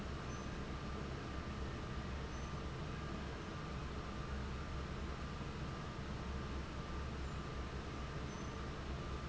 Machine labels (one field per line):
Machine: fan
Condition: abnormal